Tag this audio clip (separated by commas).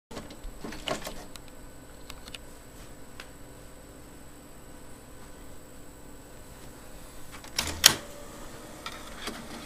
electric windows